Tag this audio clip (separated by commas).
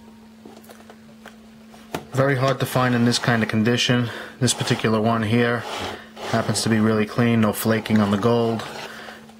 Speech